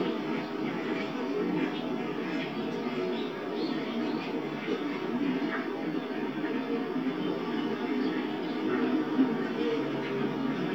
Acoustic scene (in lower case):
park